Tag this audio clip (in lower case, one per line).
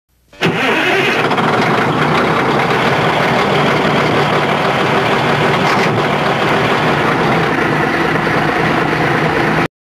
truck
vehicle